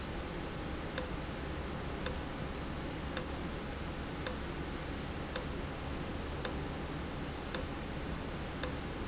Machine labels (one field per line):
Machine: valve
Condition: abnormal